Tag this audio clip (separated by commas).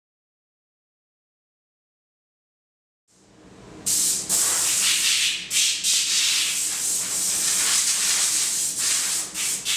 Rub